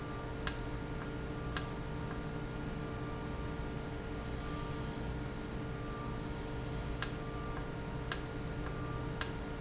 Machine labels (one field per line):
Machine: valve